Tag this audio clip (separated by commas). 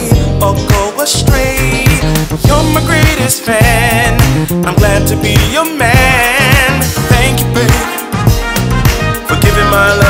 Music, Funk, Dance music, Exciting music